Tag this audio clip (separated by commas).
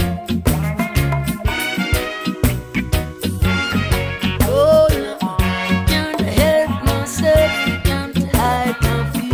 Reggae, Music